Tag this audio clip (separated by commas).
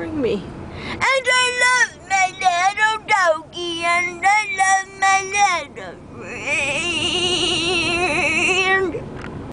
Female singing, Speech